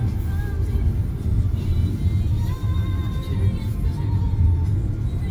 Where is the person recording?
in a car